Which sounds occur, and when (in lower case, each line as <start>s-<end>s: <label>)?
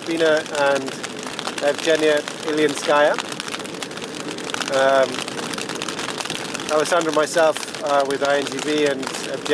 0.0s-0.8s: male speech
0.0s-9.5s: fire
0.0s-9.5s: wind
1.5s-2.2s: male speech
2.4s-3.1s: male speech
4.6s-5.1s: male speech
6.7s-7.6s: male speech
7.8s-9.0s: male speech
9.2s-9.5s: male speech